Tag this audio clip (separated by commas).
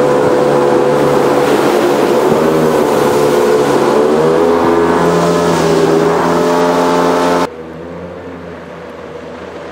Motorboat, Boat, Vehicle